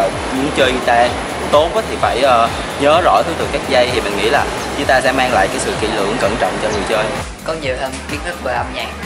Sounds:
speech, music

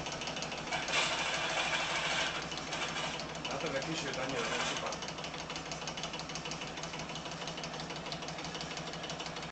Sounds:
speech, engine

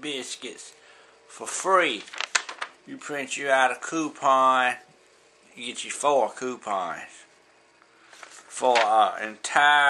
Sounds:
speech

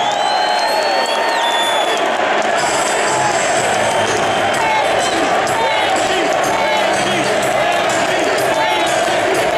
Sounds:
music, speech, crowd

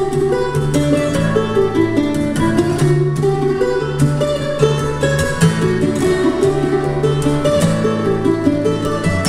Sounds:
music, guitar, mandolin, musical instrument

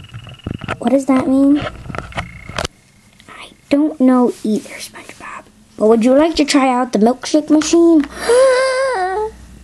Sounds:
speech

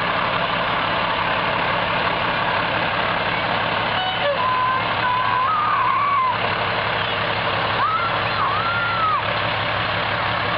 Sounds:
truck, vehicle, speech

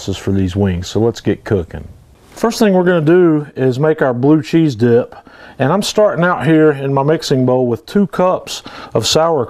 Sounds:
speech

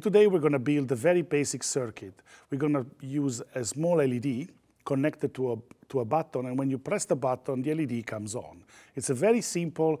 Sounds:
speech

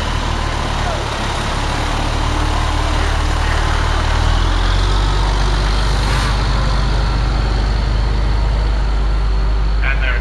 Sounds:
vehicle, truck, speech

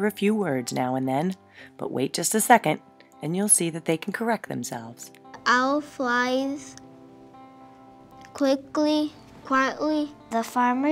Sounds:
speech, music

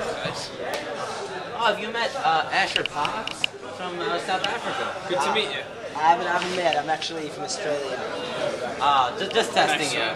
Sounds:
man speaking, speech

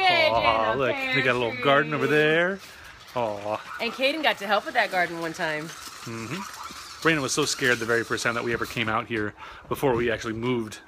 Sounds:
speech, outside, rural or natural

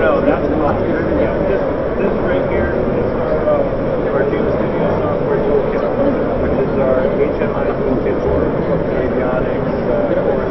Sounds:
speech

